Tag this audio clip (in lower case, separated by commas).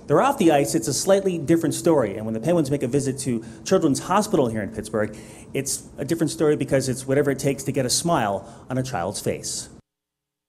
inside a large room or hall, speech